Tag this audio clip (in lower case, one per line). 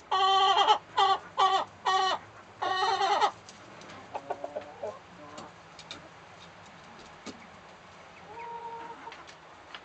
bird
livestock
fowl
chicken